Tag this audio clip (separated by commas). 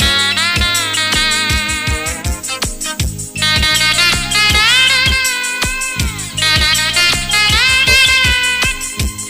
Plucked string instrument, Strum, Music, Guitar, Musical instrument